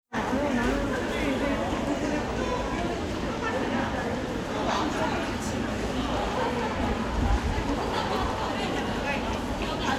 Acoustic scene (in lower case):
crowded indoor space